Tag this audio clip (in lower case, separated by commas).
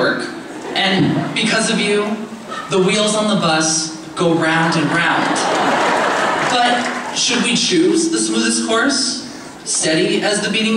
man speaking, narration, speech